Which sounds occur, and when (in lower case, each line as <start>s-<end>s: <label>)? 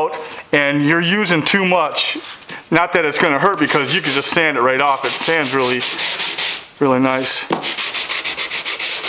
0.0s-0.3s: male speech
0.1s-0.4s: surface contact
0.5s-2.2s: male speech
1.9s-2.7s: surface contact
2.7s-5.9s: male speech
3.2s-3.3s: generic impact sounds
3.7s-4.4s: sanding
4.3s-4.4s: generic impact sounds
4.8s-6.6s: sanding
5.2s-5.3s: generic impact sounds
6.8s-7.5s: male speech
7.1s-7.5s: sanding
7.5s-7.7s: generic impact sounds
7.6s-9.0s: sanding